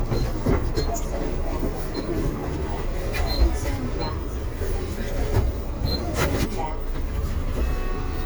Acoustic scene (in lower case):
bus